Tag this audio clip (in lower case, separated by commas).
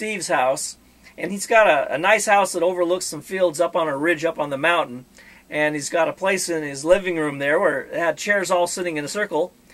speech